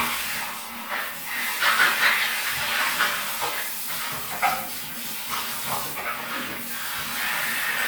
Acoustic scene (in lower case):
restroom